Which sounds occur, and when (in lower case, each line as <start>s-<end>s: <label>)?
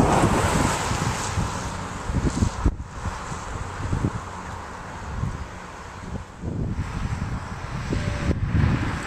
0.0s-6.4s: car passing by
0.0s-9.0s: wind
0.2s-0.6s: wind noise (microphone)
0.8s-4.2s: wind noise (microphone)
4.4s-4.6s: bird vocalization
5.0s-5.5s: wind noise (microphone)
5.9s-6.2s: wind noise (microphone)
6.3s-9.0s: wind noise (microphone)
6.6s-9.0s: car passing by